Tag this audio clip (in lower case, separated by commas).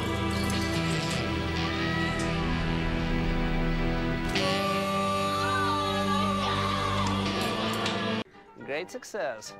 speech, music